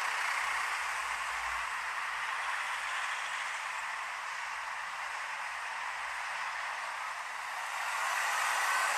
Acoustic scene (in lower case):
street